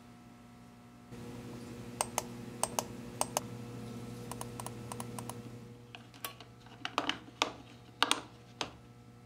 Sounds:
mouse clicking

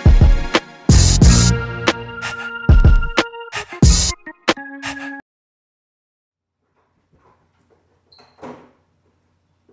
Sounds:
music, inside a small room

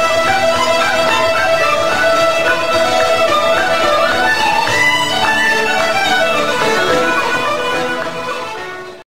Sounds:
soundtrack music, traditional music, music

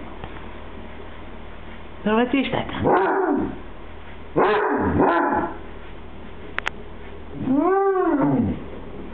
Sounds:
speech, bow-wow, domestic animals, dog

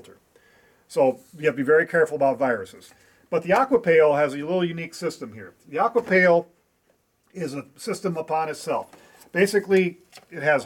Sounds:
speech

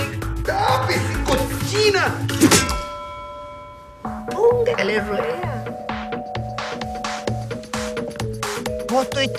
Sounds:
music, speech

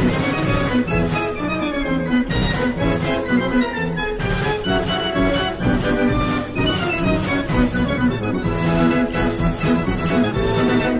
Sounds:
organ, electronic organ

